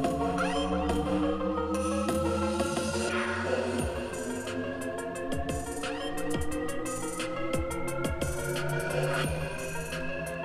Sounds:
music

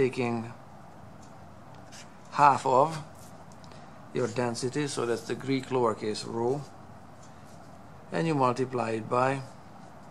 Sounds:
speech

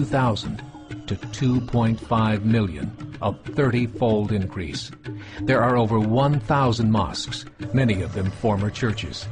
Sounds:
music, speech

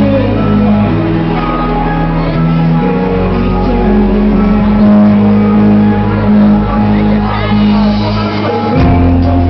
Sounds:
music, inside a public space, speech, singing

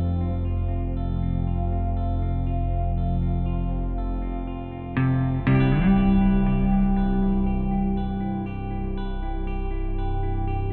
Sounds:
echo, music, effects unit

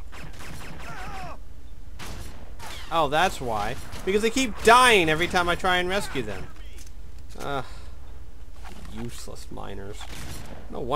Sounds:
speech

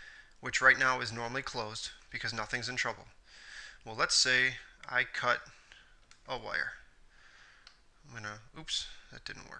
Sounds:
speech

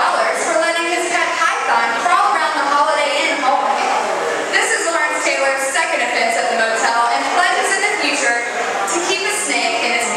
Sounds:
speech, inside a small room

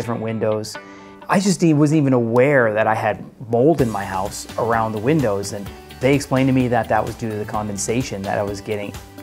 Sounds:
music, speech

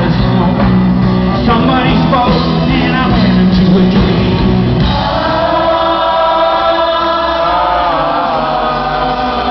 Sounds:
music, rock music

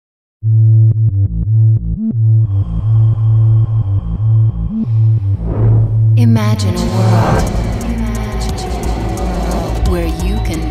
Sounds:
speech, music

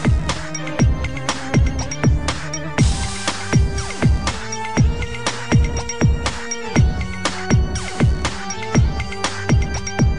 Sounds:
dubstep, music, electronic music

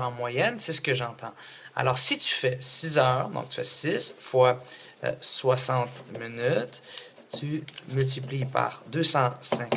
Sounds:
speech

